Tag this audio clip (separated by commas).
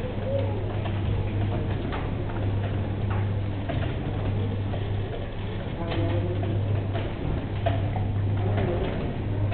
Speech